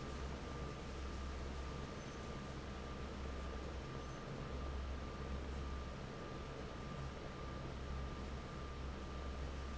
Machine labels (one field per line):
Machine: fan